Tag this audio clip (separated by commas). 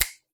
Finger snapping, Hands